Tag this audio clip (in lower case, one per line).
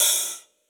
music
musical instrument
percussion
cymbal
hi-hat